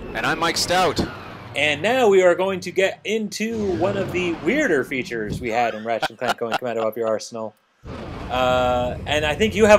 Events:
[0.00, 2.50] sound effect
[0.00, 9.75] conversation
[0.00, 9.75] video game sound
[0.01, 1.02] male speech
[1.53, 7.48] male speech
[3.38, 4.86] sound effect
[5.93, 7.57] laughter
[7.84, 9.75] sound effect
[8.23, 9.75] male speech

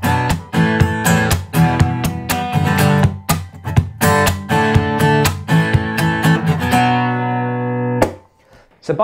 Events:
[0.00, 8.15] music
[8.34, 8.77] breathing

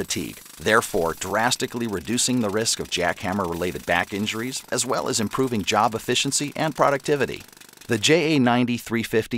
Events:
[0.00, 7.94] jackhammer
[0.00, 9.35] narration
[7.85, 9.35] male speech

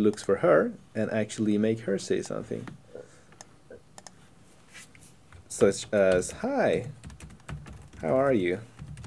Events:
[0.00, 0.78] male speech
[0.00, 9.05] background noise
[0.01, 0.29] clicking
[0.96, 2.79] male speech
[1.30, 1.42] clicking
[2.58, 2.73] clicking
[3.30, 3.44] clicking
[3.96, 4.14] clicking
[4.69, 5.52] generic impact sounds
[5.30, 9.05] typing
[5.52, 6.91] male speech
[7.93, 8.66] male speech

